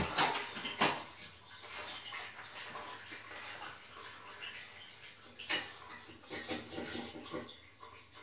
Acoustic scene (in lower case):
restroom